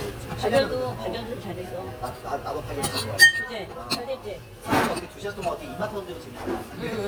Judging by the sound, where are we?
in a restaurant